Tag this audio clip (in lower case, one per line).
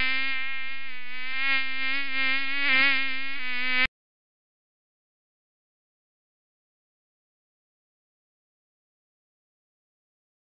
mosquito buzzing